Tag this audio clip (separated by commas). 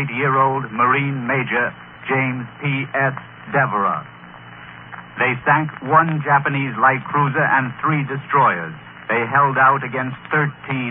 Radio, Speech